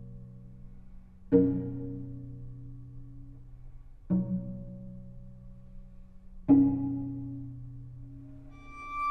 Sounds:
Cello, Pizzicato, Double bass, Bowed string instrument

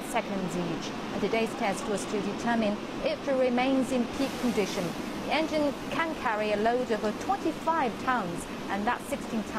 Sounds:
Speech

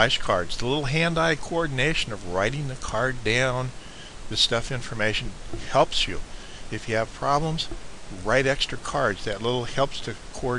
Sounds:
Speech

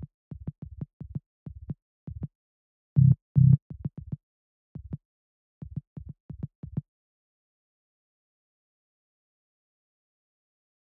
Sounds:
Music, Techno, Electronic music

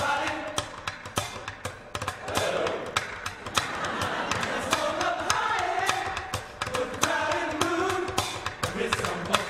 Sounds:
Rock and roll, Music

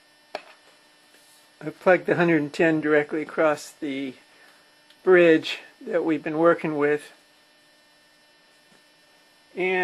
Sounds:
Tap, Speech

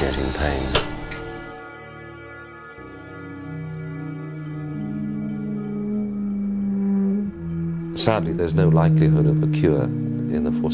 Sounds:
Speech, Music

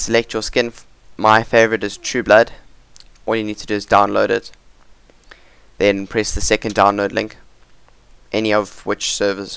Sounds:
Speech

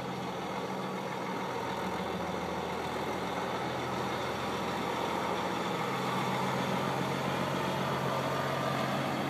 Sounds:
Vehicle, Truck, outside, rural or natural

